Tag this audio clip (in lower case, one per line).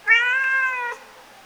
domestic animals
cat
animal